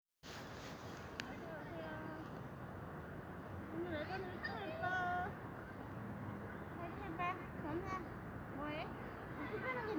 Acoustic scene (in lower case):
residential area